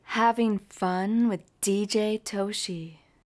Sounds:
woman speaking
human voice
speech

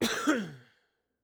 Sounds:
cough
respiratory sounds

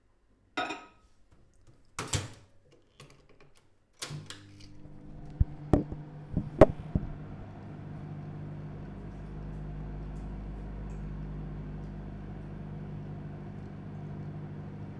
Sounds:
home sounds
microwave oven

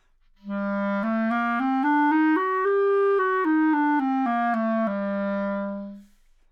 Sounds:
wind instrument
music
musical instrument

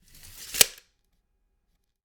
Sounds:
tick

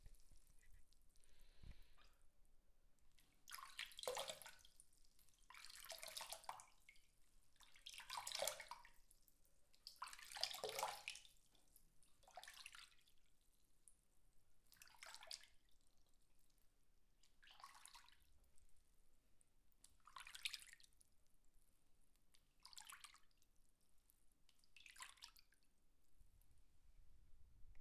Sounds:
sink (filling or washing)
domestic sounds

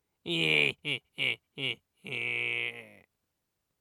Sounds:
laughter
human voice

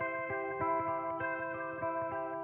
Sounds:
plucked string instrument
music
guitar
musical instrument
electric guitar

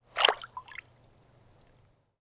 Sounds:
splatter
water
liquid

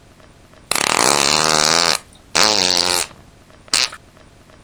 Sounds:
fart

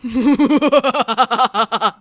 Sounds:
laughter
human voice

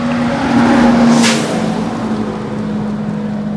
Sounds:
vehicle
bus
motor vehicle (road)
hiss
engine

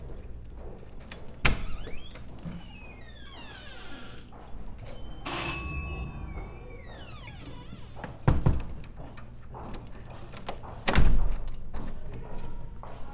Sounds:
alarm
doorbell
home sounds
door

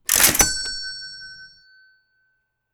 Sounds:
mechanisms
bell

